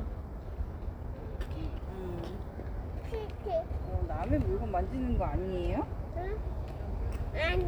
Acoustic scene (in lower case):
residential area